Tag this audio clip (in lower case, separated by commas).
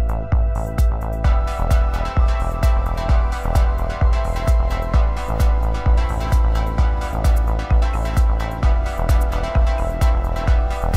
music, theme music